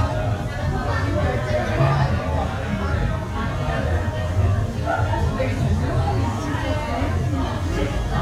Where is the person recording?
in a restaurant